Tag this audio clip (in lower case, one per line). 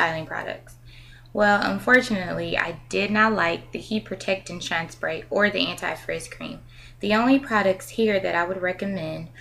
speech